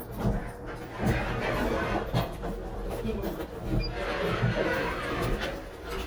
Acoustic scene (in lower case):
elevator